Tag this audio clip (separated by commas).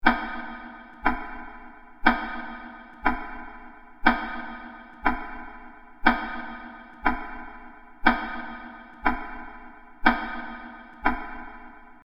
Clock, Tick-tock, Mechanisms